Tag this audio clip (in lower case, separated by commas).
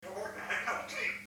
speech, human voice